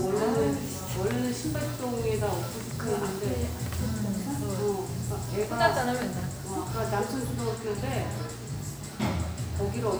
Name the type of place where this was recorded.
cafe